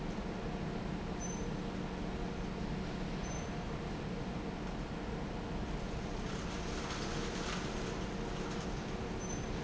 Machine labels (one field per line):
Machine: fan